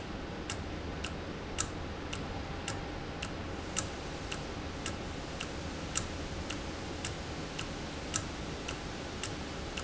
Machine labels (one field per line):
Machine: valve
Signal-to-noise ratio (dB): -6 dB